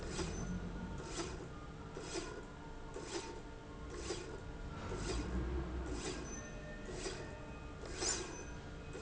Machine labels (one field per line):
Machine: slide rail